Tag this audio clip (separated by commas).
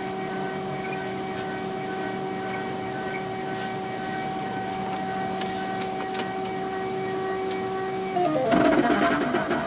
inside a large room or hall, Tools